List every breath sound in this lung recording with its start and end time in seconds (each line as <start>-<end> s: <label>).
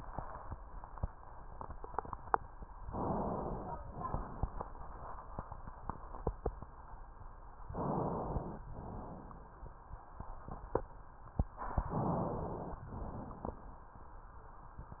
2.87-3.78 s: inhalation
3.85-4.76 s: exhalation
7.68-8.60 s: inhalation
8.71-9.62 s: exhalation
11.86-12.77 s: inhalation
12.86-13.78 s: exhalation